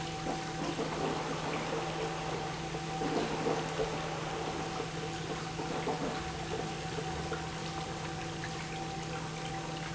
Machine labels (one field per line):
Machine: pump